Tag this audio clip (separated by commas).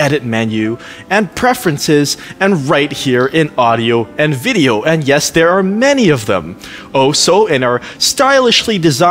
Speech, Music